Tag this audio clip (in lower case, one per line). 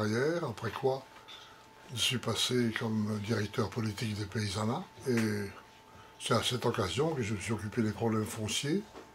speech